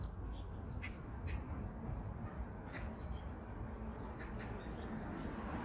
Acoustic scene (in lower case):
residential area